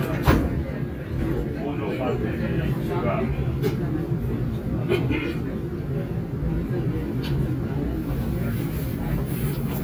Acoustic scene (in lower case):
subway train